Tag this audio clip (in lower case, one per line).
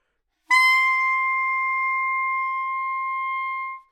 wind instrument
musical instrument
music